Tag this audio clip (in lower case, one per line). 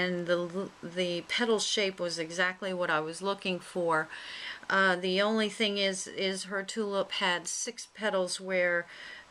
speech